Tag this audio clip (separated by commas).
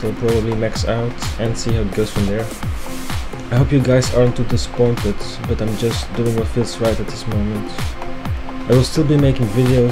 Speech, Music